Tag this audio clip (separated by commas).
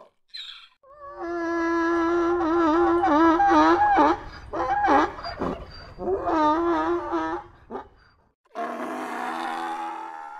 donkey